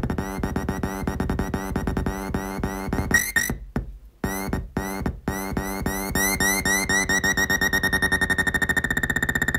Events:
0.0s-3.4s: music
0.0s-9.5s: background noise
3.7s-3.8s: music
4.1s-4.5s: music
4.7s-5.0s: music
5.2s-9.5s: music

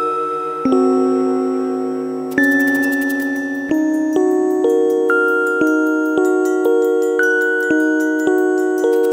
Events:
0.0s-9.1s: music

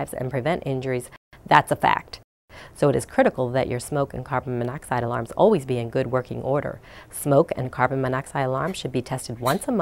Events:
0.0s-1.0s: female speech
0.0s-1.2s: background noise
1.3s-2.2s: background noise
1.4s-2.0s: female speech
2.5s-2.7s: breathing
2.5s-9.8s: background noise
2.7s-6.8s: female speech
6.8s-7.1s: breathing
7.1s-9.8s: female speech

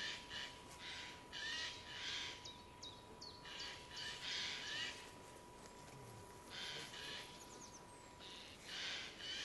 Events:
0.0s-0.6s: owl
0.0s-9.4s: mechanisms
0.6s-0.7s: generic impact sounds
0.8s-2.4s: owl
2.4s-4.1s: bird song
3.4s-5.0s: owl
5.0s-5.4s: surface contact
5.6s-6.3s: generic impact sounds
5.8s-6.2s: human voice
6.5s-7.3s: owl
6.7s-7.1s: human voice
7.3s-7.8s: bird song
8.1s-9.4s: owl

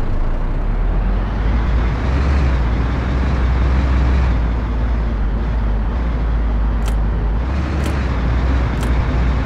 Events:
0.0s-9.4s: truck
6.8s-6.9s: generic impact sounds
7.8s-7.9s: generic impact sounds
8.8s-8.8s: generic impact sounds

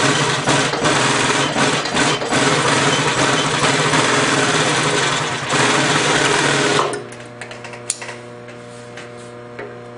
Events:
0.0s-6.8s: sewing machine
6.9s-6.9s: generic impact sounds
6.9s-9.9s: mechanisms
7.0s-7.2s: generic impact sounds
7.3s-7.7s: generic impact sounds
7.8s-8.1s: generic impact sounds
8.4s-8.5s: generic impact sounds
8.5s-8.8s: surface contact
8.9s-9.0s: generic impact sounds
9.1s-9.3s: surface contact
9.5s-9.6s: generic impact sounds

